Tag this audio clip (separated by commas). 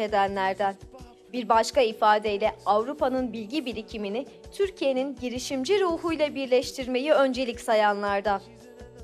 Music, Speech